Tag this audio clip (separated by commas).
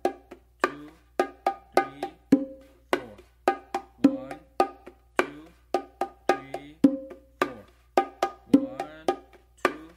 playing bongo